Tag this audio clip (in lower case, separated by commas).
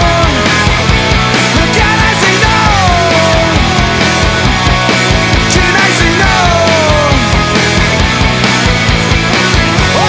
music, punk rock, grunge, rock music